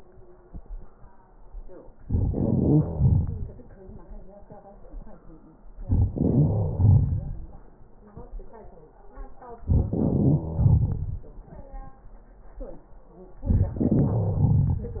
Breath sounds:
2.10-3.49 s: wheeze
5.87-7.35 s: wheeze
9.76-11.23 s: wheeze
13.49-15.00 s: wheeze

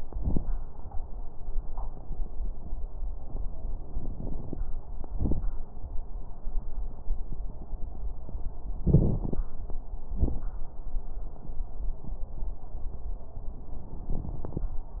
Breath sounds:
8.85-9.46 s: inhalation
8.85-9.46 s: crackles
10.10-10.55 s: exhalation
10.10-10.55 s: crackles

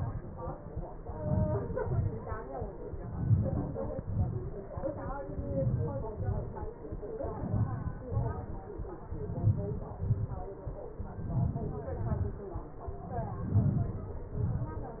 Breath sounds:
1.19-1.69 s: inhalation
1.85-2.12 s: exhalation
3.29-3.78 s: inhalation
4.01-4.44 s: exhalation
5.51-6.03 s: inhalation
6.20-6.57 s: exhalation
7.57-8.07 s: inhalation
8.19-8.58 s: exhalation
9.32-9.91 s: inhalation
10.16-10.56 s: exhalation
11.32-11.89 s: inhalation
12.09-12.51 s: exhalation
13.53-13.99 s: inhalation
14.38-14.85 s: exhalation

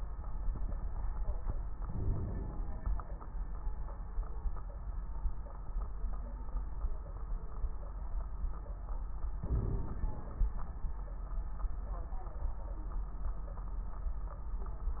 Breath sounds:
1.78-3.04 s: inhalation
1.78-3.04 s: crackles
9.42-10.50 s: inhalation
9.42-10.50 s: crackles

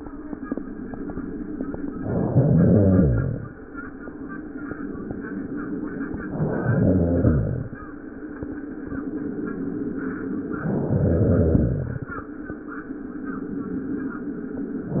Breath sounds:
1.94-3.49 s: inhalation
6.22-7.77 s: inhalation
10.49-12.06 s: inhalation

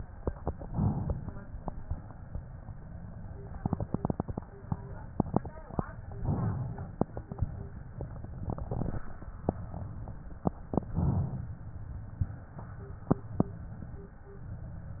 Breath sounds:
0.61-1.86 s: inhalation
1.86-2.83 s: exhalation
6.20-7.45 s: inhalation
7.45-9.06 s: exhalation
10.94-12.26 s: inhalation
12.26-13.40 s: exhalation

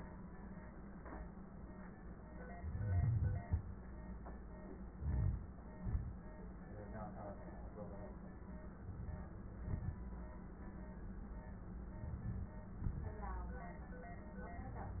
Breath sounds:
2.55-3.47 s: wheeze
4.89-5.75 s: inhalation
4.89-5.75 s: crackles
5.75-6.39 s: exhalation
8.80-9.35 s: inhalation
9.36-10.33 s: exhalation
9.36-10.33 s: crackles
11.98-12.68 s: inhalation
11.98-12.68 s: crackles
12.70-13.16 s: exhalation
12.70-13.16 s: crackles

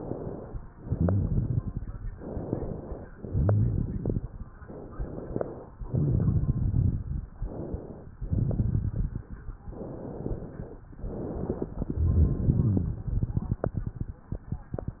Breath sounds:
0.00-0.60 s: inhalation
0.70-2.05 s: exhalation
0.70-2.05 s: crackles
2.13-3.11 s: inhalation
3.14-4.44 s: exhalation
3.14-4.44 s: crackles
4.64-5.63 s: inhalation
5.83-7.13 s: exhalation
5.83-7.13 s: crackles
7.40-8.14 s: inhalation
8.18-9.57 s: exhalation
8.18-9.57 s: crackles
9.63-10.84 s: inhalation
10.92-11.80 s: inhalation
11.76-14.11 s: exhalation
11.76-14.11 s: crackles

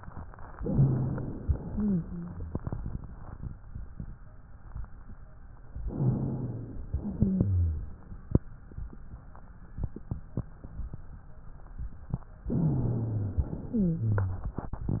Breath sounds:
0.54-1.41 s: inhalation
0.62-1.33 s: wheeze
1.41-2.61 s: exhalation
1.41-2.61 s: wheeze
5.80-6.83 s: inhalation
5.90-6.81 s: wheeze
6.85-7.95 s: exhalation
6.85-7.95 s: wheeze
12.47-13.53 s: inhalation
12.47-13.53 s: wheeze
13.55-14.60 s: exhalation
13.55-14.60 s: wheeze

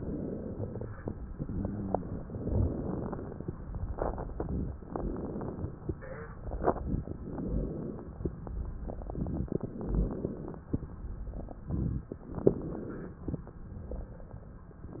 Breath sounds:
0.00-1.25 s: inhalation
1.25-2.27 s: exhalation
2.26-3.62 s: inhalation
3.60-4.83 s: exhalation
4.82-5.89 s: inhalation
7.13-8.30 s: inhalation
9.56-10.73 s: inhalation
12.14-13.47 s: inhalation
13.47-14.79 s: exhalation

